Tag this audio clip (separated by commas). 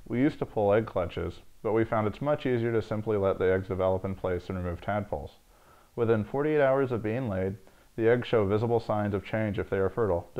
Speech